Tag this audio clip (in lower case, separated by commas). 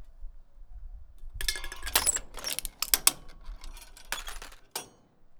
crushing